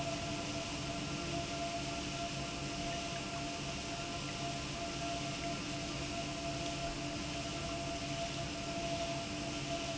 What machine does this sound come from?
pump